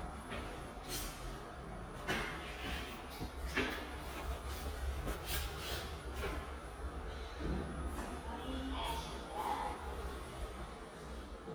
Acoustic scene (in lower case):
elevator